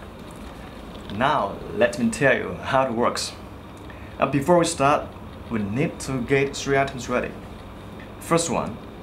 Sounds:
Speech

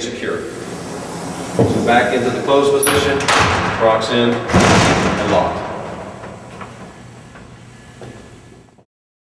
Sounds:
Sliding door, Speech, Door

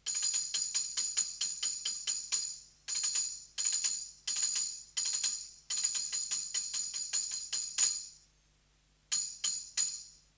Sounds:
playing tambourine

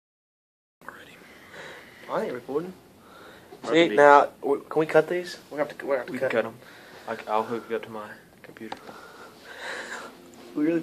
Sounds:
Male speech, Speech

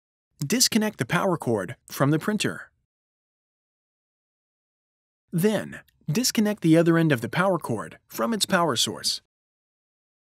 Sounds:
Speech

